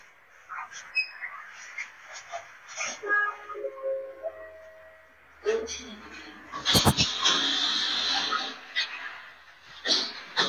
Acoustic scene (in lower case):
elevator